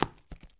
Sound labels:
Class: object falling